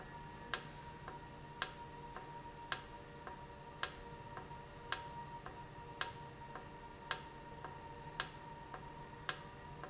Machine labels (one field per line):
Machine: valve